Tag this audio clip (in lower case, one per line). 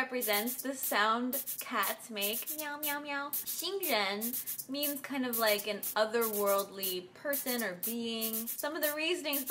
meow
speech
music